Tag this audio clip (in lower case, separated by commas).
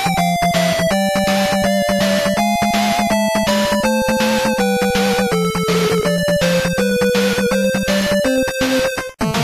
music